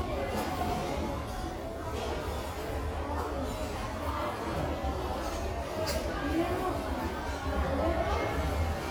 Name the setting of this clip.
restaurant